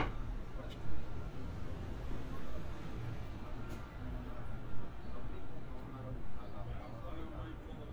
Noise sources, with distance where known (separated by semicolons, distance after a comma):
person or small group talking